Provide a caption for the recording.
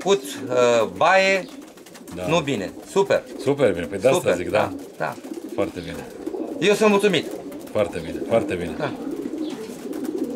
People speak as pigeons coo and flap their wings